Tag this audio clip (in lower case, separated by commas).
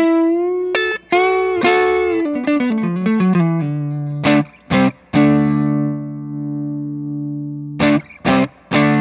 guitar, inside a small room, plucked string instrument, effects unit, musical instrument, music